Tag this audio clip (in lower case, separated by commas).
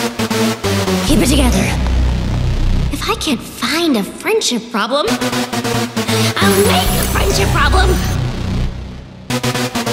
speech, music